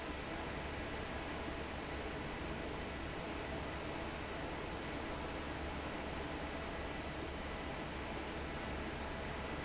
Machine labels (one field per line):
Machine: fan